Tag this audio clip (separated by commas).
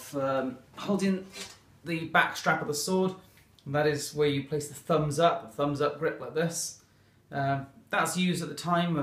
Speech